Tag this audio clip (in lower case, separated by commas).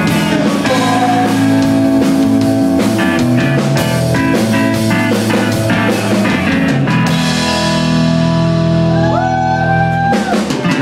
music